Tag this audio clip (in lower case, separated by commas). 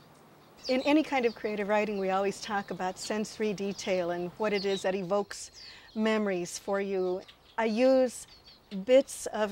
speech